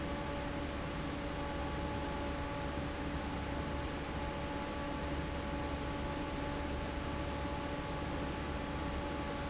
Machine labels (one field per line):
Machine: fan